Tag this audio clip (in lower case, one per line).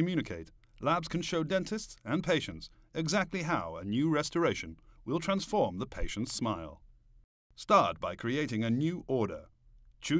speech